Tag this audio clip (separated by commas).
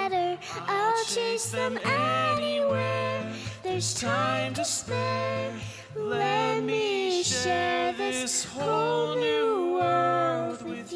child singing